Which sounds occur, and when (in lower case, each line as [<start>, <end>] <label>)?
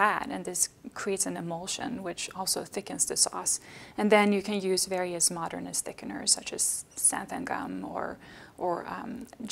[0.00, 0.65] woman speaking
[0.00, 9.51] background noise
[0.94, 3.56] woman speaking
[3.54, 3.95] breathing
[3.91, 6.79] woman speaking
[4.21, 4.32] clicking
[4.90, 4.96] clicking
[6.96, 8.16] woman speaking
[8.20, 8.54] breathing
[8.52, 9.51] woman speaking
[9.21, 9.33] clicking